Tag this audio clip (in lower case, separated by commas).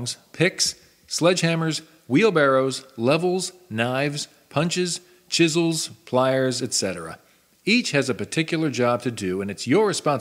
speech